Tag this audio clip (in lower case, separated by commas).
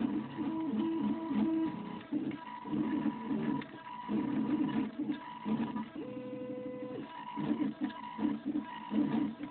printer